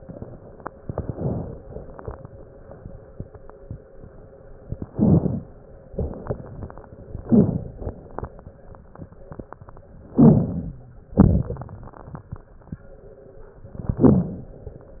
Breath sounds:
Inhalation: 0.78-1.60 s, 4.90-5.52 s, 7.25-7.88 s, 10.15-10.78 s, 13.72-14.65 s
Exhalation: 5.90-6.83 s, 11.16-12.09 s
Crackles: 0.78-1.60 s, 4.90-5.52 s, 5.90-6.83 s, 7.25-7.88 s, 10.15-10.78 s, 11.16-12.09 s, 13.72-14.65 s

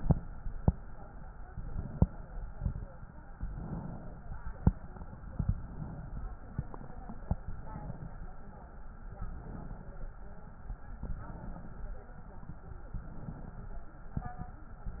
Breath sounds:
Inhalation: 1.45-2.53 s, 3.36-4.58 s, 7.28-8.34 s, 9.11-10.17 s, 10.96-12.03 s, 12.94-14.01 s, 14.87-15.00 s

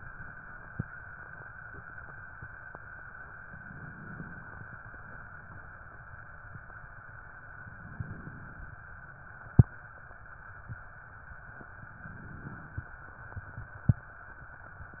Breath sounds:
Inhalation: 3.51-4.75 s, 7.59-8.82 s, 11.84-13.07 s

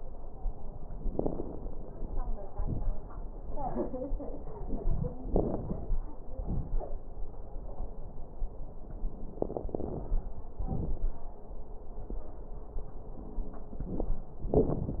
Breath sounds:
Inhalation: 1.10-1.67 s, 5.27-5.98 s, 9.45-10.05 s
Exhalation: 2.48-3.05 s, 6.30-6.86 s, 10.60-11.20 s
Crackles: 1.10-1.67 s, 2.48-3.05 s, 5.27-5.98 s, 6.30-6.86 s, 9.45-10.05 s, 10.60-11.20 s

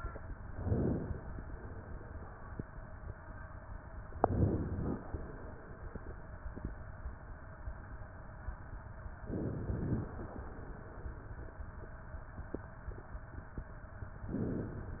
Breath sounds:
Inhalation: 0.42-1.29 s, 4.16-5.02 s, 9.37-10.23 s, 14.27-15.00 s
Exhalation: 1.29-2.32 s, 5.08-6.12 s, 10.25-11.28 s

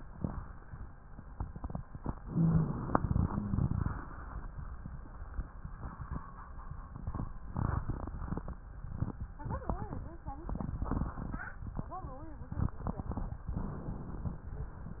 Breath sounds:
Inhalation: 2.24-3.15 s
Exhalation: 3.25-4.16 s
Rhonchi: 2.20-2.85 s, 3.25-3.89 s

